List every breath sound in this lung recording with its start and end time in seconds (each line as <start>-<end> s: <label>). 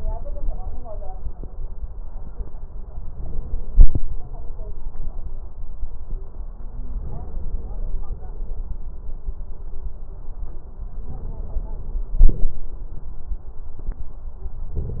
No breath sounds were labelled in this clip.